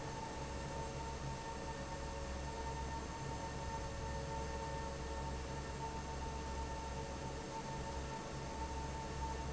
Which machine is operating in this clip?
fan